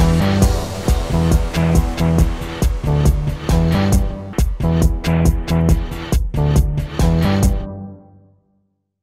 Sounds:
music

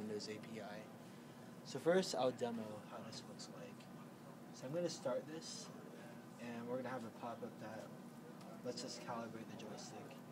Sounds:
speech

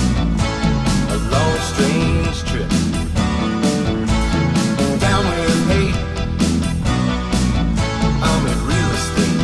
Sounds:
music

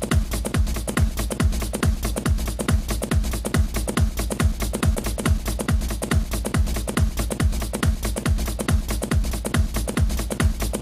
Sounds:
music

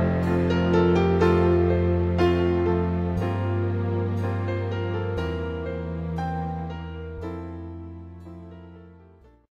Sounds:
keyboard (musical)
piano

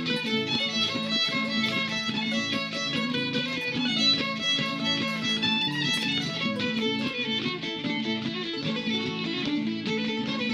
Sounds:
pizzicato

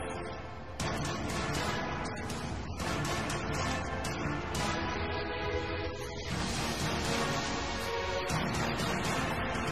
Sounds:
music

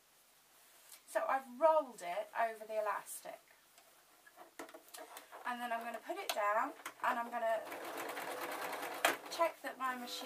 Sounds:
sewing machine

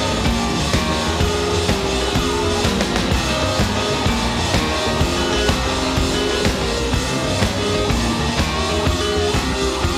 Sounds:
rock and roll

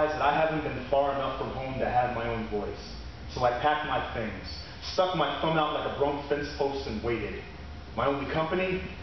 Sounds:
speech

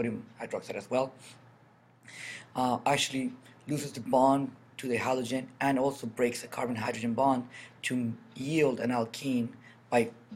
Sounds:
speech

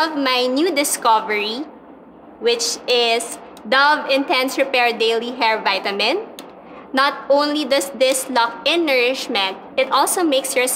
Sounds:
speech

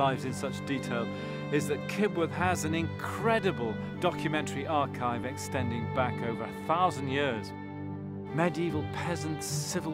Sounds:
music
speech

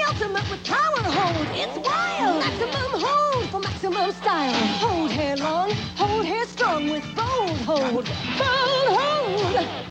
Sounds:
music

